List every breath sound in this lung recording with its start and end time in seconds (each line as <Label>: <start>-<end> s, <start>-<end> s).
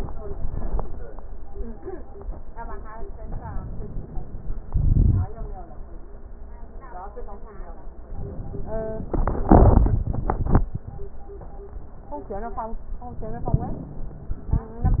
Inhalation: 3.15-4.54 s